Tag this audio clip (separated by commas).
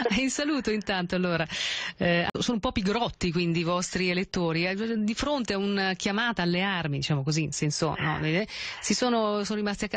Speech